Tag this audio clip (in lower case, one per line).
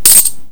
domestic sounds
coin (dropping)